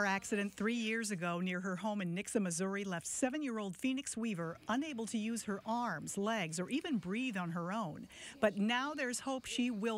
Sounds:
speech

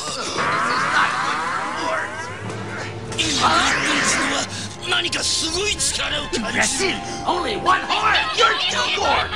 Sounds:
speech, music

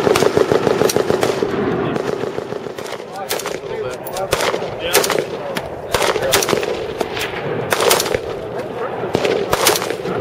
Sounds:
machine gun shooting

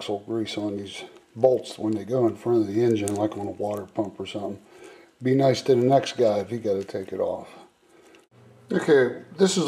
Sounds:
speech

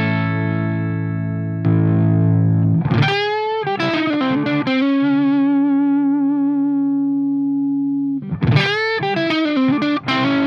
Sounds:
distortion, effects unit, plucked string instrument, musical instrument, music, guitar

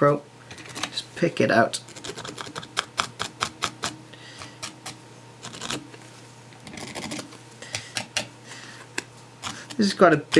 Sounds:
speech

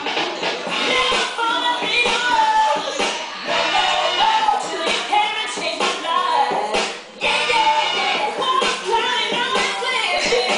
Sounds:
music, inside a small room

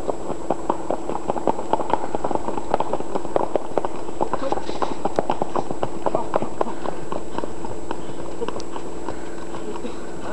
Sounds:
speech, horse clip-clop, clip-clop, horse, animal

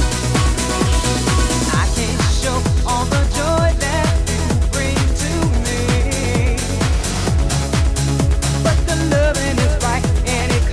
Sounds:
music

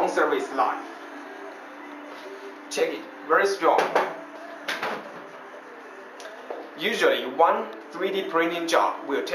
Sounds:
speech

